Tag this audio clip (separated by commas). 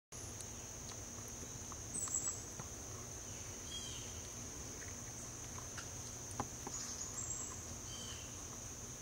Bird vocalization, Patter, Bird, rats